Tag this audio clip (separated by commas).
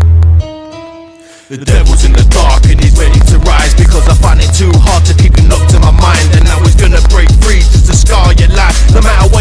Music, Dance music